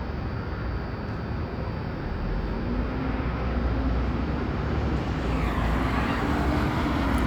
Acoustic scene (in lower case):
street